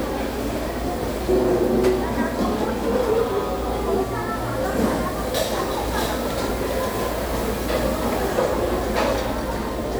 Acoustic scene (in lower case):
restaurant